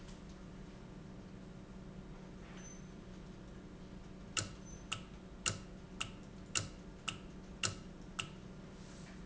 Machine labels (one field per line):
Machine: valve